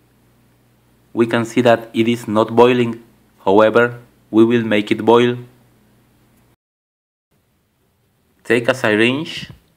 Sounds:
Speech

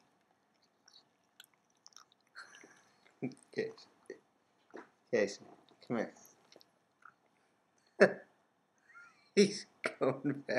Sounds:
Speech

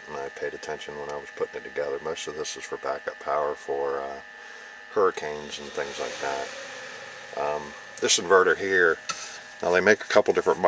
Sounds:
inside a small room, Speech

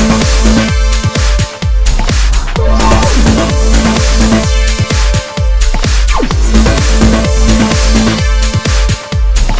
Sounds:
Music, Trance music

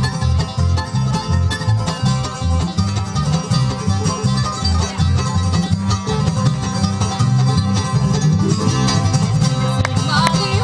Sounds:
Music

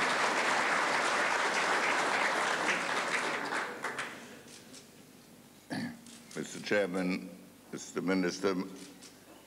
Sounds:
Male speech, monologue, Speech

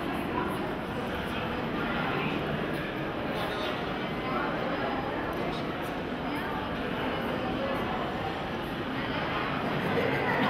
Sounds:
Speech

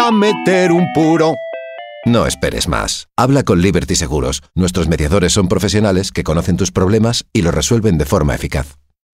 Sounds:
Music, Speech

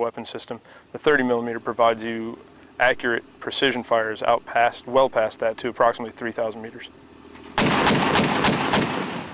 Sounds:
Speech, outside, rural or natural, Vehicle

